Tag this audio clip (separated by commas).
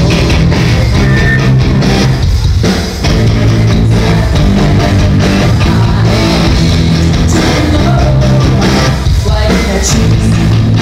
Female singing, Music